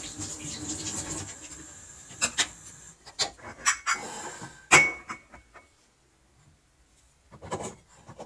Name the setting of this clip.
kitchen